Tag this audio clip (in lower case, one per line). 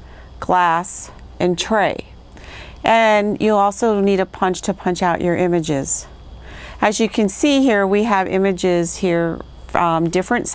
speech